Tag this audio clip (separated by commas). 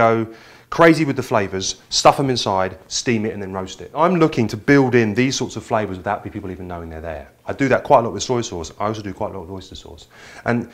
Speech